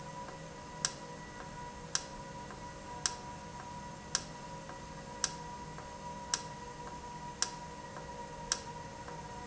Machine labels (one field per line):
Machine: valve